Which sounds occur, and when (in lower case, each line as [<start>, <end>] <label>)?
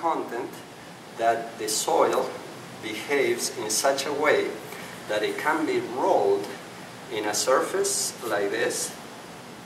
[0.00, 0.60] male speech
[0.00, 9.65] mechanisms
[1.12, 2.34] male speech
[2.07, 2.18] tick
[2.79, 4.56] male speech
[4.65, 4.74] tick
[5.03, 6.62] male speech
[6.38, 6.48] tick
[7.05, 8.98] male speech